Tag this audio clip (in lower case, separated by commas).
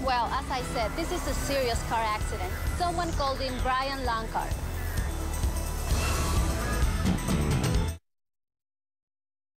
music, speech